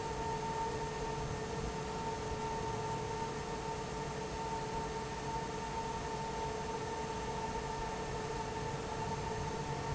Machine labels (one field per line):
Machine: fan